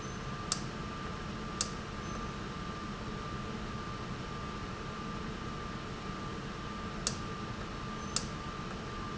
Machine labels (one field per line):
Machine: valve